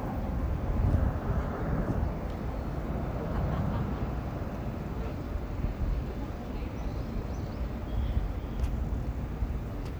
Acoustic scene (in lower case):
park